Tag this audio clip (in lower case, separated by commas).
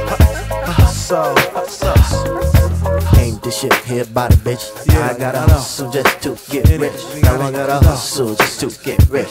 hip hop music, funk, music